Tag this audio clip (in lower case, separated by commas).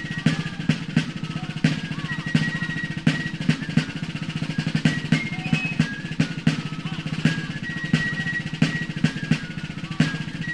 musical instrument, bass drum, music, drum, speech